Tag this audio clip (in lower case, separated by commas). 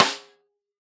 percussion, music, musical instrument, drum, snare drum